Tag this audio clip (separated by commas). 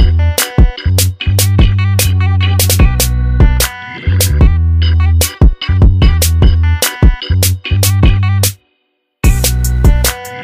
Music